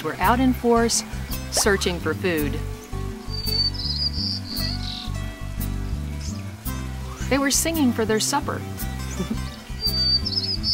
A woman speaking with music and birds chirping in the background